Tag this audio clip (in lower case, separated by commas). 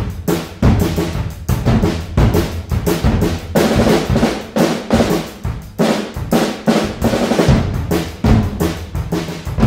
music, percussion